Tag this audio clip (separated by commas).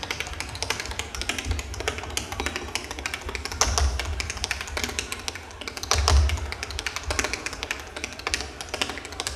tap dancing